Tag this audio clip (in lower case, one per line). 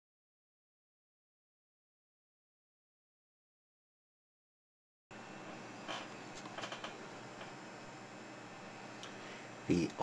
speech